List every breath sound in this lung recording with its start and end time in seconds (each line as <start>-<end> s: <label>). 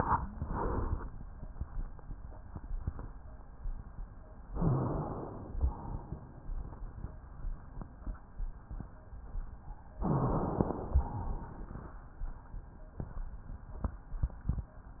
0.32-1.12 s: exhalation
4.51-5.54 s: inhalation
5.56-7.27 s: exhalation
10.02-11.06 s: inhalation
10.02-11.06 s: crackles
11.05-12.01 s: exhalation